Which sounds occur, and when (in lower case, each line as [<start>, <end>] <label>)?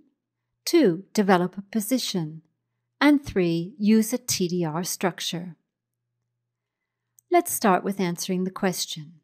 [0.00, 0.18] generic impact sounds
[0.00, 9.23] background noise
[0.66, 1.04] woman speaking
[1.16, 1.60] woman speaking
[1.74, 2.43] woman speaking
[3.02, 3.73] woman speaking
[3.83, 5.58] woman speaking
[7.15, 7.25] clicking
[7.31, 9.22] woman speaking